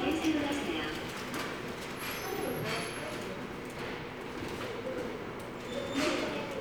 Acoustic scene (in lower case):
subway station